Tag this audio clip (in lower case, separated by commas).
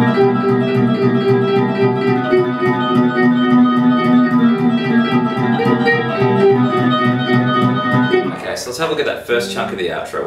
guitar, plucked string instrument, musical instrument, strum, music, acoustic guitar, speech